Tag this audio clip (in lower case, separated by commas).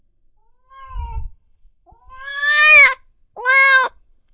meow, animal, domestic animals, cat